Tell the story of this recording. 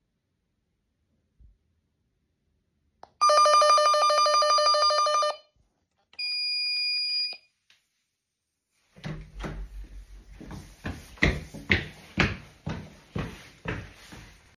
The doorbell rang, and I opened the door. The guest walked in.